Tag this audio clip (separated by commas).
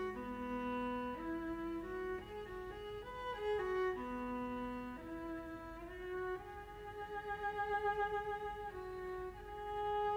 Musical instrument, Music, Bowed string instrument, Cello